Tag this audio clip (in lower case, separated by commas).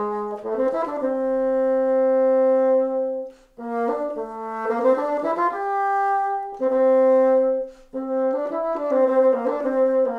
playing bassoon